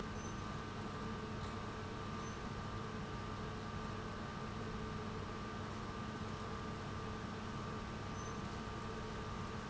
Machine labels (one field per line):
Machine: pump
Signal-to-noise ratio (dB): 0 dB